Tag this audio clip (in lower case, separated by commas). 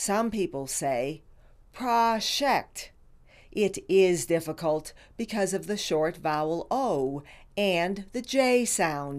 speech, female speech